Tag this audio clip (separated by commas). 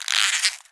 Squeak